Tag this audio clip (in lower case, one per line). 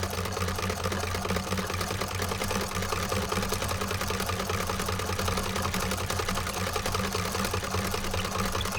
engine
mechanisms